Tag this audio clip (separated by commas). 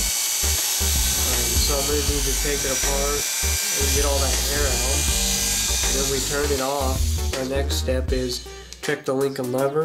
inside a small room, Electric shaver, Speech, Music